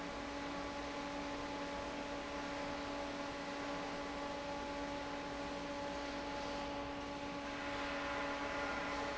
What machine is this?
fan